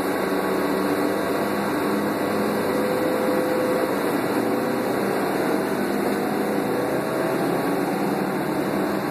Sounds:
vehicle, bus

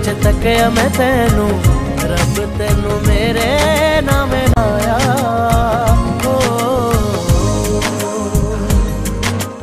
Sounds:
music of bollywood

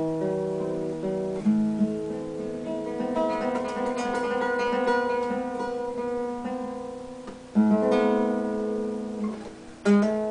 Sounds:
musical instrument, acoustic guitar, plucked string instrument, guitar, music

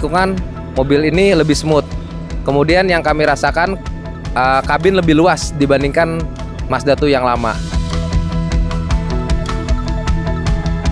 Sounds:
speech, music

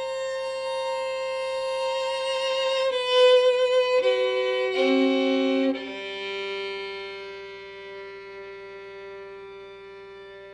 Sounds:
bowed string instrument, violin

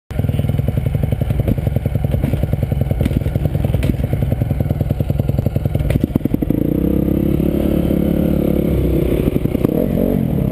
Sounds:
motorcycle, vehicle, driving motorcycle

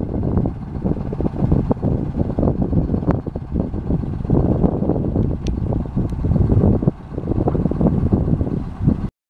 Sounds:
vehicle, bus

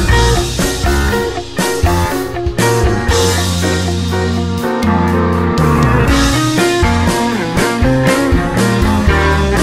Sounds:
music

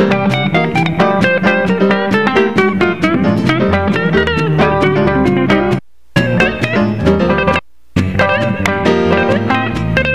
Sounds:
music, guitar, jazz, musical instrument

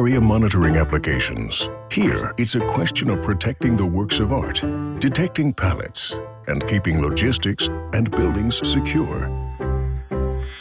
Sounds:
speech, music

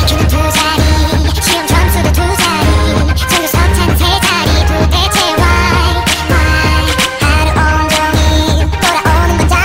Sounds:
music

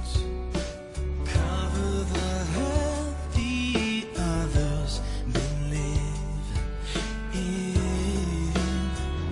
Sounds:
music

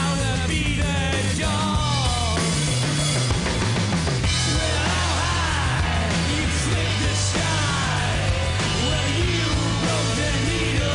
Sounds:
musical instrument, guitar, acoustic guitar, strum, plucked string instrument, music

